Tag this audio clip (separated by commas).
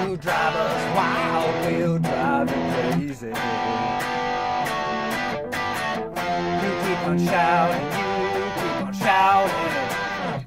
Music, Rock and roll, Guitar, Strum, Musical instrument, Acoustic guitar, Plucked string instrument